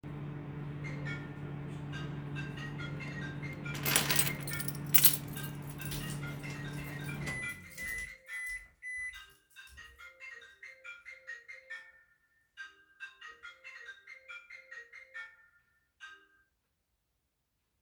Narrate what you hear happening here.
A microwave is audible in the beginning and a phone starts ringing. I start picking up my keys and make my way towards the phone. During this, the microwave finishes and beeps.